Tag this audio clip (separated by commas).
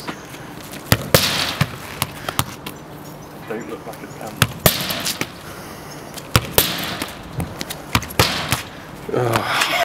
Speech